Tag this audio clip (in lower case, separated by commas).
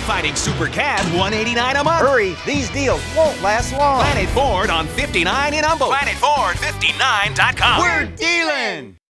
music, speech